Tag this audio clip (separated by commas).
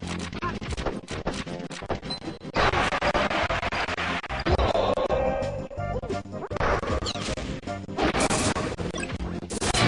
Smash